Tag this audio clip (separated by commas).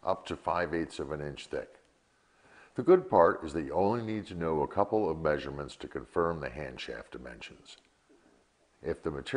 Speech